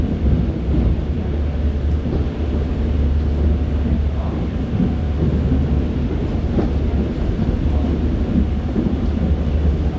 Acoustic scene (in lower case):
subway train